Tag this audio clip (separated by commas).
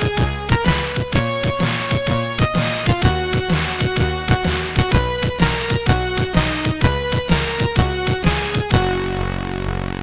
Music